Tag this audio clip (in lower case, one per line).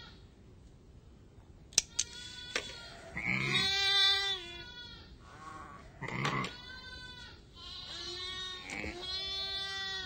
sheep
bleat
sheep bleating